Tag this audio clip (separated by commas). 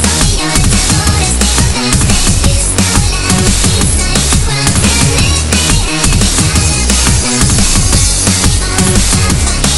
Disco, Dance music, Music